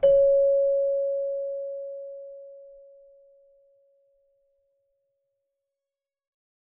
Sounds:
Music, Musical instrument, Keyboard (musical)

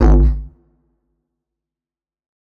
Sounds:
Musical instrument, Music

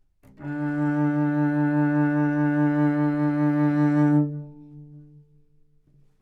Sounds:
Bowed string instrument, Musical instrument, Music

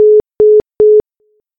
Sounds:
Telephone, Alarm

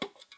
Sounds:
Tick

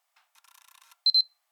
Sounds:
Camera, Mechanisms

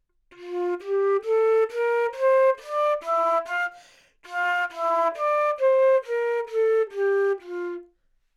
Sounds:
Musical instrument, Music, woodwind instrument

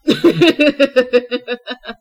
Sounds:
Human voice, Laughter

